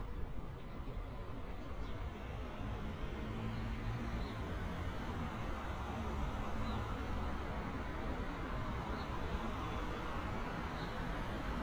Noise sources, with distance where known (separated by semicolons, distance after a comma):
medium-sounding engine